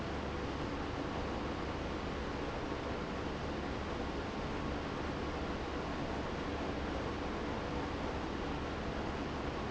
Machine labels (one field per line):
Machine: pump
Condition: abnormal